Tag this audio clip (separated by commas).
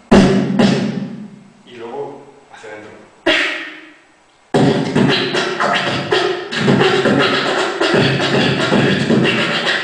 Vocal music, Speech, Beatboxing